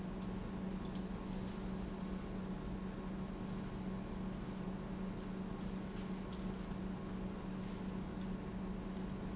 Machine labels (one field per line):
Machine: pump